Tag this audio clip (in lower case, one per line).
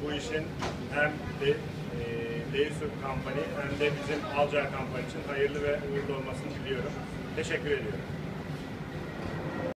speech